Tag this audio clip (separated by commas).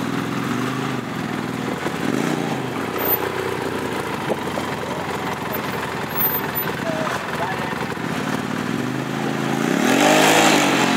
Speech